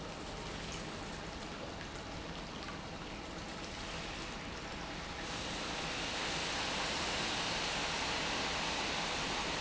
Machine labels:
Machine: pump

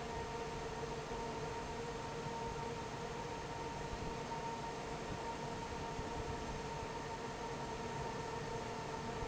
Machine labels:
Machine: fan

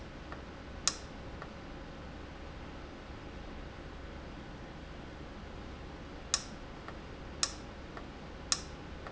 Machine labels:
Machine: valve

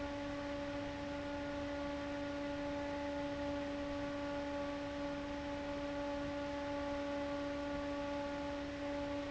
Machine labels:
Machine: fan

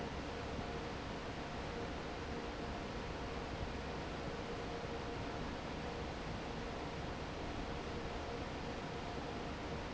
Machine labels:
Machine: fan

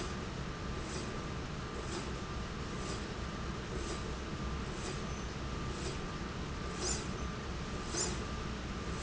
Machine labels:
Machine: slide rail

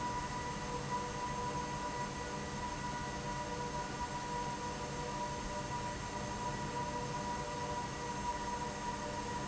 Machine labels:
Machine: fan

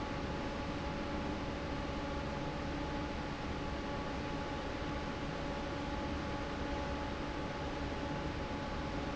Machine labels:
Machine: fan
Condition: normal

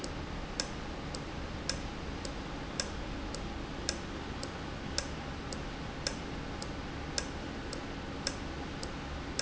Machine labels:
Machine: valve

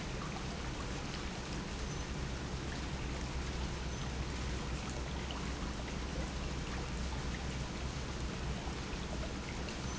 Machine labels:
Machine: pump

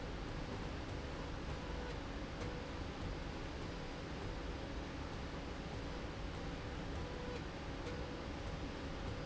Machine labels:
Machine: slide rail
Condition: normal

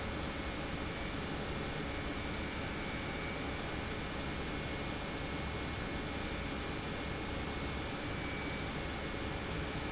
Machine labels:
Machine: pump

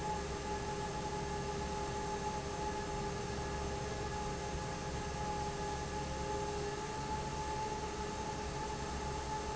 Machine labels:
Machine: fan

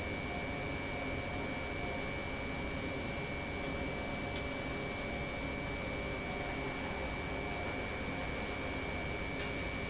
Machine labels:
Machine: pump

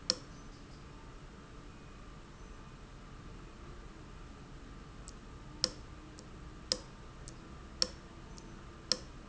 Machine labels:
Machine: valve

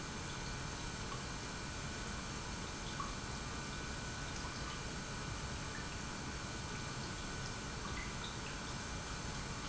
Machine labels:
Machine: pump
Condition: normal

